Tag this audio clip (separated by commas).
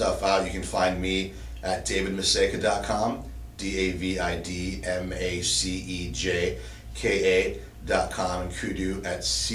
Speech